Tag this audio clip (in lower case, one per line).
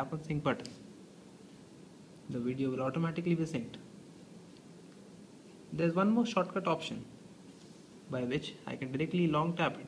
speech